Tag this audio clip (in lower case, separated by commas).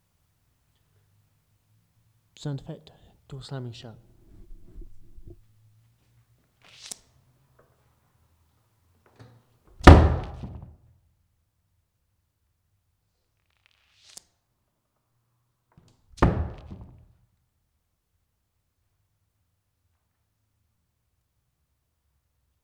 home sounds, door, slam